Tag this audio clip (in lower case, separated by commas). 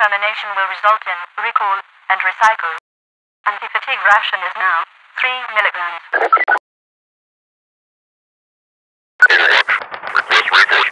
police radio chatter